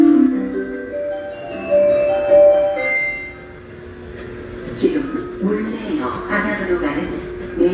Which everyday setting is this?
subway station